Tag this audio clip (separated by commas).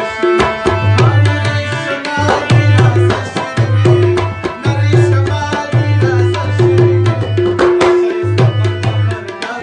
playing tabla